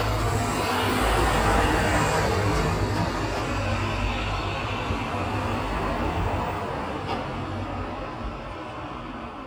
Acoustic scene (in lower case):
street